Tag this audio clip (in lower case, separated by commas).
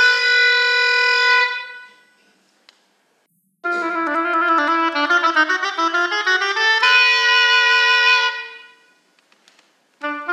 clarinet